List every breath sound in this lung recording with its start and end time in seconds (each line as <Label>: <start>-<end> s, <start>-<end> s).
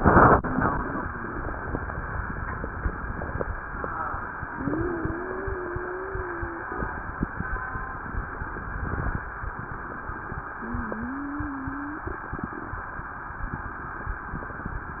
Wheeze: 4.50-6.72 s, 10.61-12.18 s